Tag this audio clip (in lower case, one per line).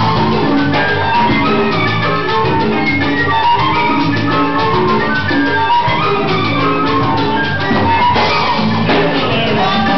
salsa music
music
music of latin america